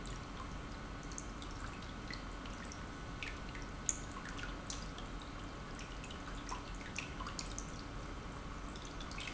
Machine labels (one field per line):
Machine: pump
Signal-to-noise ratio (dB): 6 dB